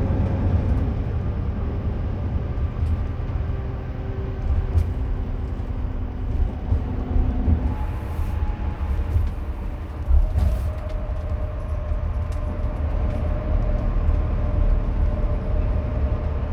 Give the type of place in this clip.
car